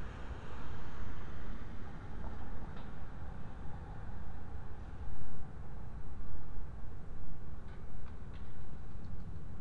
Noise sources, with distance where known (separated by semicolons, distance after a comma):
background noise